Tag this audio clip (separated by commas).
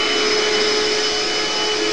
home sounds